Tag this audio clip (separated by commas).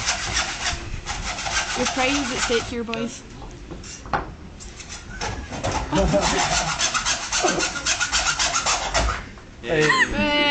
Speech